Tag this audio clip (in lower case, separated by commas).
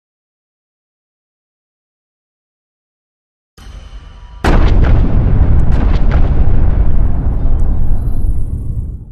music